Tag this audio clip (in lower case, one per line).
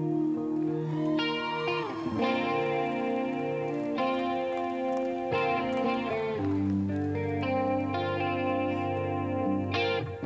music